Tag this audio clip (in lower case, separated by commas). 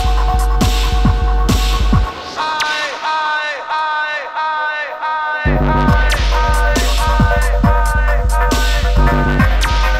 hum, throbbing